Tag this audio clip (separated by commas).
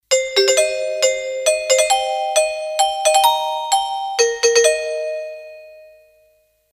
Doorbell, Door, Alarm, Domestic sounds